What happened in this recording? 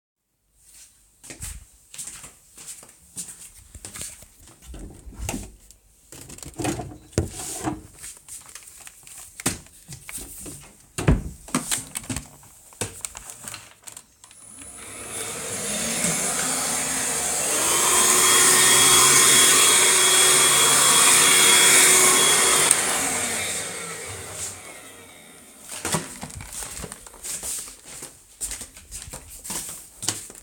After a few footsteps, a cupboard door opens and the sound of removing the vacuum cleaner is heard. This is followed by the cupboard door closing. Then footsteps are heard together with the sounds of moving the vacuum cleaner. The vacuum cleaner starts, is switched to a higher setting, and then stops. Footsteps are heard again, along with the rattling of the vacuum cleaner’s plastic parts.